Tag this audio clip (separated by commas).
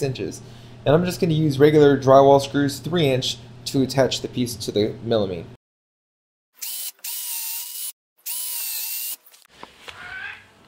Speech, Drill